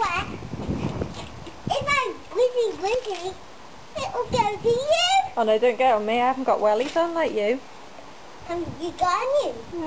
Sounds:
speech

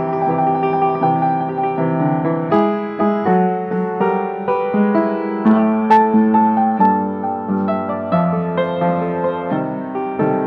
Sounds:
music, background music, house music

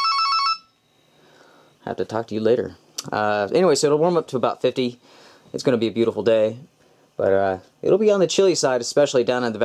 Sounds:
speech, inside a small room

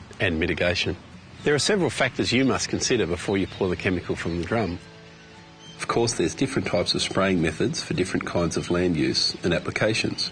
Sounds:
music, speech

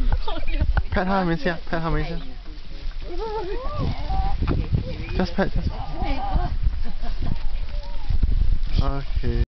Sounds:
speech

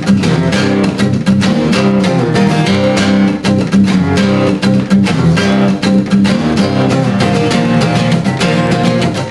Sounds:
music, musical instrument, acoustic guitar, guitar, heavy metal, strum, plucked string instrument

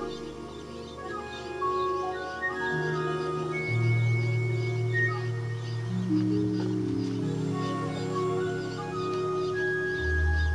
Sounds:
music

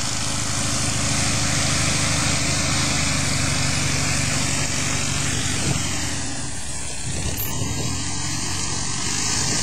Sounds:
aircraft, outside, rural or natural, vehicle, airplane

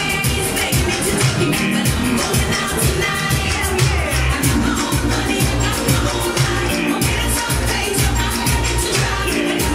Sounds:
music, exciting music

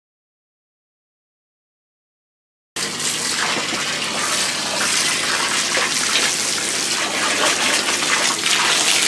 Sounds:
liquid

